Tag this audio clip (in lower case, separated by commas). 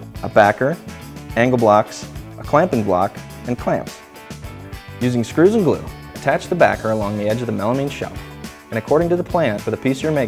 speech, music